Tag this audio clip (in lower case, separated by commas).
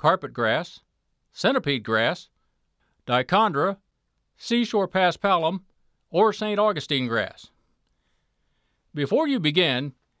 speech